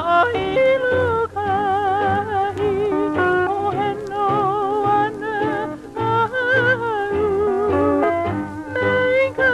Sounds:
Music

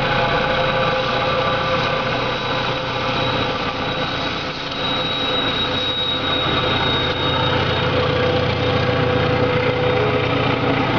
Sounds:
Train, Railroad car, Vehicle, Rail transport, Engine

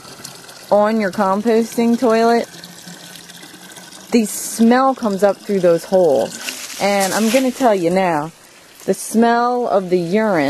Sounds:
outside, urban or man-made, Speech, faucet

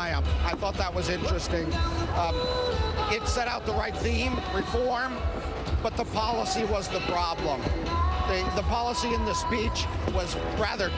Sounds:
Speech, Narration, Music, Male speech

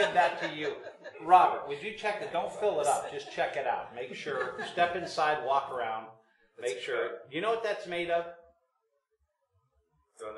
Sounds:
Speech

